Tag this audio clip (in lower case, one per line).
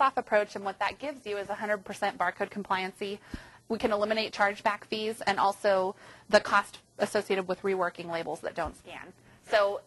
speech